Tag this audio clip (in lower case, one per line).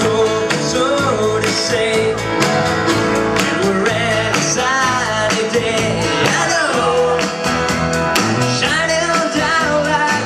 music